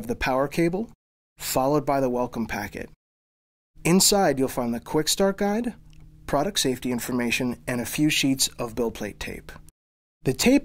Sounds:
speech

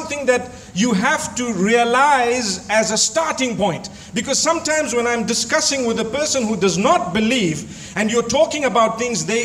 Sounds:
man speaking, narration, speech

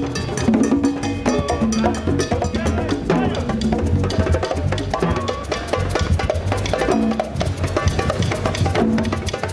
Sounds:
percussion, drum

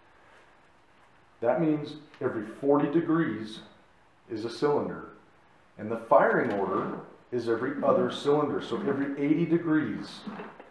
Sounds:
speech

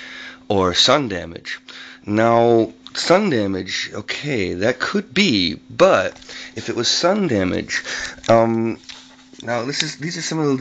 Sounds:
speech

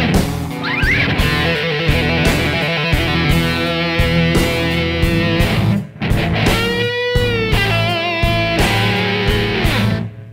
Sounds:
musical instrument, music

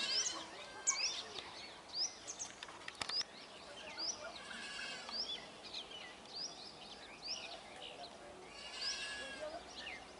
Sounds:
mynah bird singing

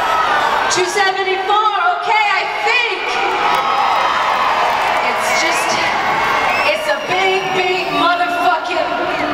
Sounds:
monologue, speech, woman speaking

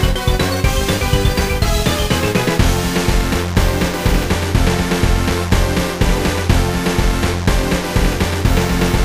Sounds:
music

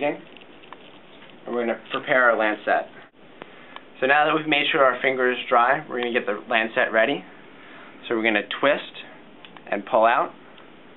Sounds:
speech, inside a small room

